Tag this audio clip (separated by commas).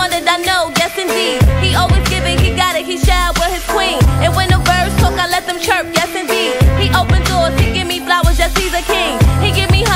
Music